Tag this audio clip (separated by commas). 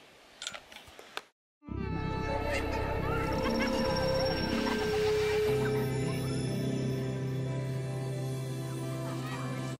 Music